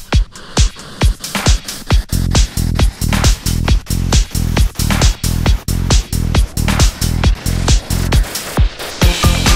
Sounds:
music

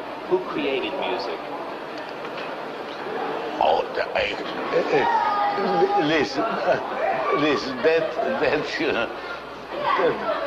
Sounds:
speech

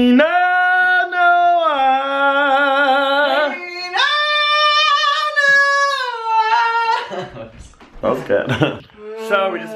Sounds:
inside a small room, speech

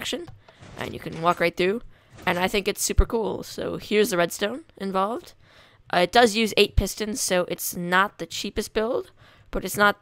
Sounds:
speech

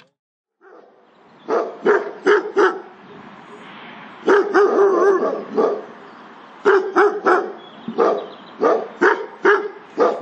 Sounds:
bird, animal

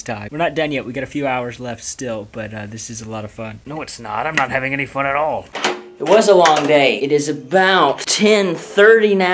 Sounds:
inside a small room, speech

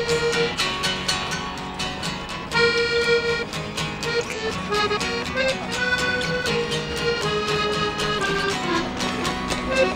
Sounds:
music

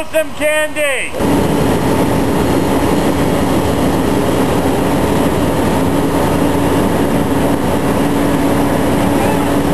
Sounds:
truck, vehicle, speech

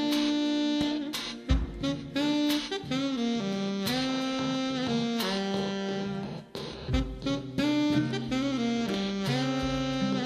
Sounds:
music, jazz, saxophone, musical instrument

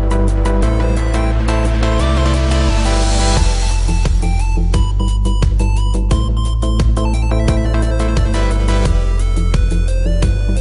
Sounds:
trance music, electronic music, electronica, electronic dance music, house music, music

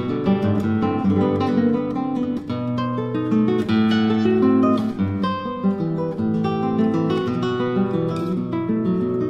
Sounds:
musical instrument, guitar, electric guitar, music

